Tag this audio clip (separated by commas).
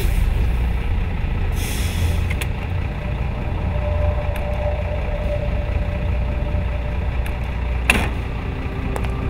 Music